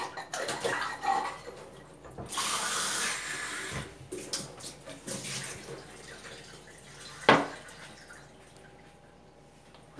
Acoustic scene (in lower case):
kitchen